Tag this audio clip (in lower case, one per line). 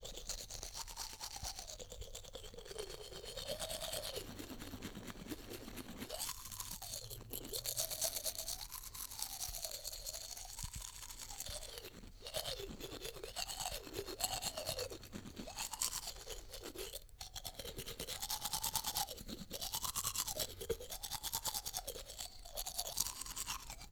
home sounds